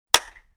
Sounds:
clapping, hands

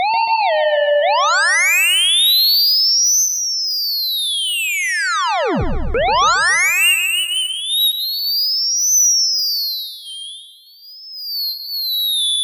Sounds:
musical instrument, music

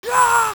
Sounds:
human voice, screaming, shout

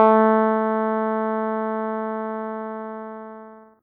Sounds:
music, musical instrument, keyboard (musical)

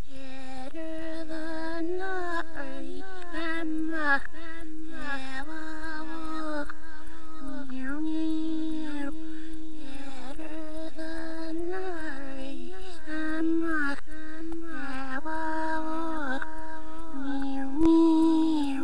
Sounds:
singing, human voice

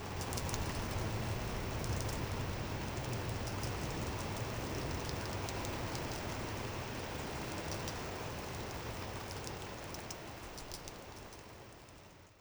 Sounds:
rain, water

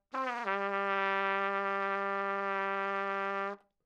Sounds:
music, musical instrument, trumpet, brass instrument

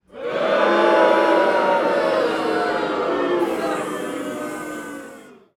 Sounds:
human group actions, crowd

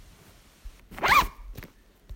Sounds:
zipper (clothing), home sounds

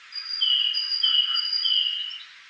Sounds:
wild animals, animal, bird

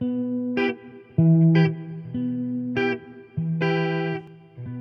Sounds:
guitar, electric guitar, musical instrument, music, plucked string instrument

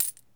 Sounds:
coin (dropping), home sounds

